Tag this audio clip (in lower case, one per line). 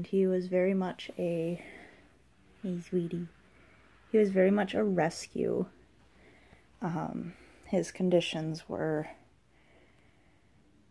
speech